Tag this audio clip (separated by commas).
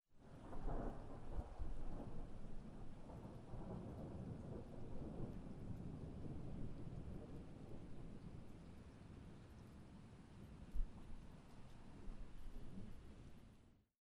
Thunderstorm, Thunder